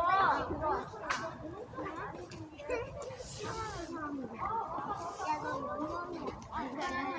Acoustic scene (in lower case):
residential area